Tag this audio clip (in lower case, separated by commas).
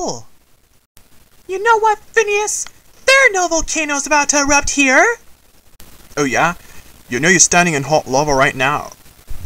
speech